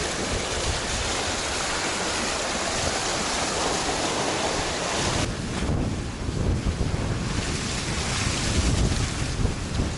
Water being sprayed while a boat is sailing